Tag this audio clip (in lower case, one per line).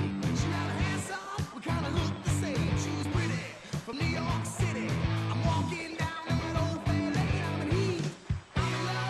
music